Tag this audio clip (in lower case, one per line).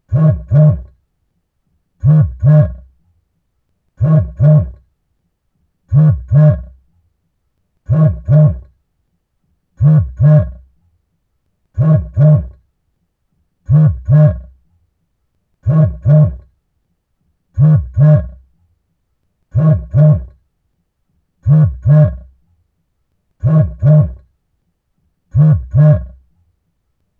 alarm
telephone